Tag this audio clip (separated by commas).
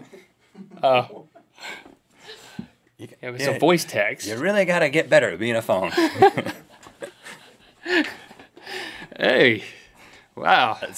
Speech